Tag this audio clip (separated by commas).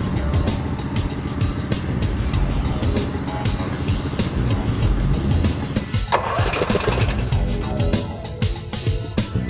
Music